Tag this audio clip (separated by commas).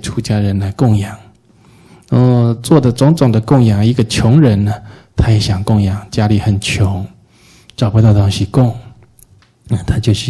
Speech